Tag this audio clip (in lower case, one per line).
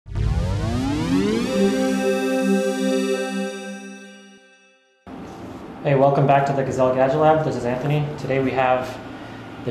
synthesizer
speech